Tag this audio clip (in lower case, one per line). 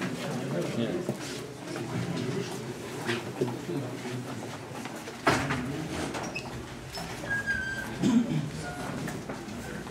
speech